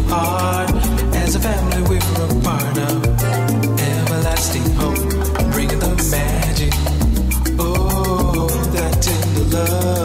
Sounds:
music

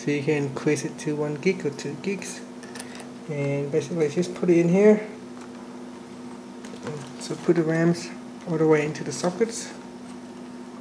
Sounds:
speech, inside a small room

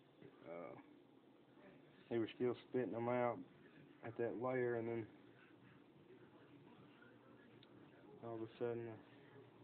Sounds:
speech

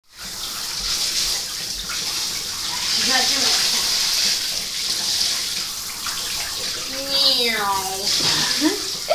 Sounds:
speech, bathtub (filling or washing)

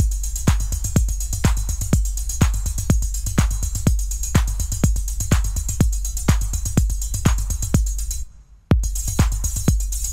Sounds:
techno, electronic music, music, drum machine

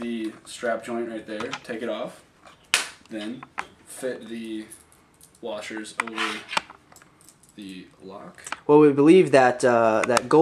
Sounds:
speech

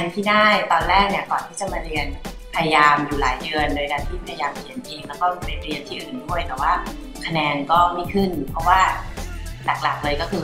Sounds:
speech, music

